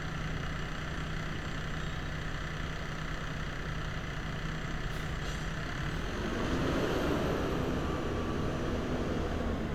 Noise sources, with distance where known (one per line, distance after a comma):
large-sounding engine, near